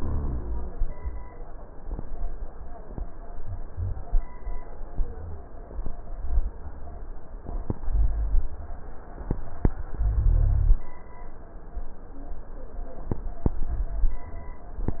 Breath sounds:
Rhonchi: 0.00-0.84 s, 10.00-10.84 s

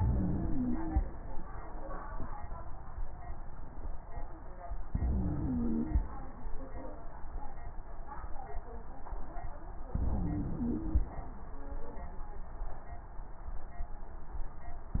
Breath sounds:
Inhalation: 0.00-0.97 s, 4.96-5.93 s, 9.98-11.08 s
Wheeze: 0.00-0.97 s, 4.96-5.93 s, 9.98-11.08 s

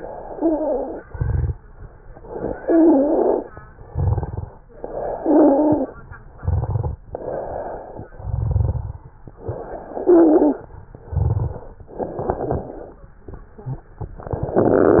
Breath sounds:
Inhalation: 0.00-1.00 s, 2.21-3.55 s, 4.74-5.96 s, 7.09-8.07 s, 9.40-10.68 s, 11.93-13.01 s
Exhalation: 1.05-1.53 s, 3.88-4.58 s, 6.35-6.99 s, 8.17-9.12 s, 10.91-11.87 s
Stridor: 0.26-0.97 s, 2.59-3.49 s, 5.16-5.88 s, 9.94-10.68 s
Crackles: 1.10-1.53 s, 3.88-4.50 s, 6.39-7.01 s, 8.25-8.98 s, 11.07-11.67 s, 12.01-12.75 s

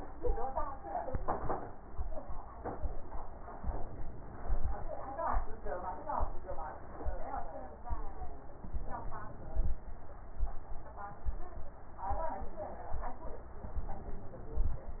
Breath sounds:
Inhalation: 3.60-4.84 s, 8.55-9.80 s, 13.65-14.90 s

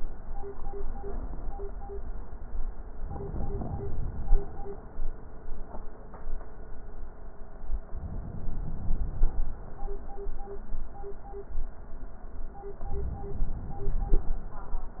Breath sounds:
Inhalation: 3.03-4.53 s, 7.94-9.44 s, 12.74-14.24 s

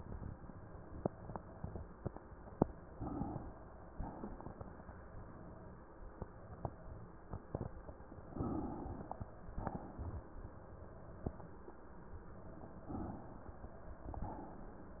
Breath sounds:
Inhalation: 2.90-3.91 s, 8.42-9.59 s, 12.91-14.16 s
Exhalation: 3.91-4.92 s, 9.59-10.44 s, 14.16-14.95 s

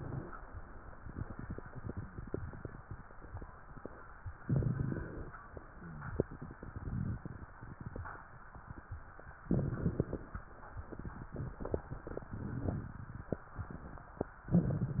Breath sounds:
Inhalation: 4.40-5.32 s, 9.47-10.40 s
Crackles: 4.40-5.32 s, 9.47-10.40 s

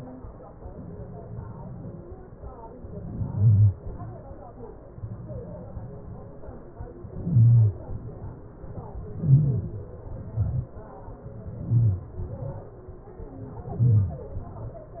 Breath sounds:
Inhalation: 2.68-3.65 s, 6.93-7.69 s, 8.79-9.64 s, 11.37-12.11 s, 13.26-14.13 s
Exhalation: 3.70-4.46 s, 7.70-8.35 s, 9.68-10.42 s, 12.12-12.86 s, 14.12-14.72 s
Stridor: 2.68-3.65 s, 3.70-4.46 s, 6.93-7.69 s, 7.70-8.35 s, 8.79-9.64 s, 9.68-10.42 s, 11.37-12.11 s, 12.12-12.86 s, 14.12-14.72 s

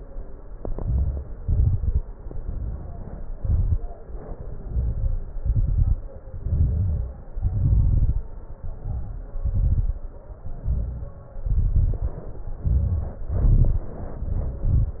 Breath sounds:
Inhalation: 0.57-1.36 s, 2.22-3.34 s, 4.63-5.39 s, 6.38-7.28 s, 8.49-9.38 s, 10.45-11.38 s, 12.58-13.24 s, 14.02-14.69 s
Exhalation: 1.39-2.03 s, 3.38-3.82 s, 5.41-6.00 s, 7.37-8.26 s, 9.40-10.07 s, 11.42-12.35 s, 13.28-13.95 s, 14.65-15.00 s
Crackles: 0.57-1.36 s, 1.39-2.03 s, 2.22-3.34 s, 3.38-3.82 s, 4.63-5.39 s, 5.41-6.00 s, 6.38-7.28 s, 7.37-8.26 s, 8.49-9.38 s, 9.40-10.07 s, 10.45-11.38 s, 11.42-12.35 s, 12.58-13.24 s, 13.28-13.95 s, 14.02-14.62 s, 14.65-15.00 s

